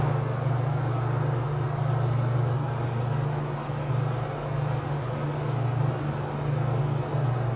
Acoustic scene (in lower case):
elevator